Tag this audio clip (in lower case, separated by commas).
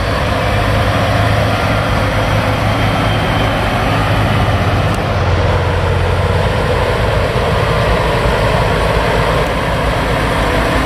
vehicle, truck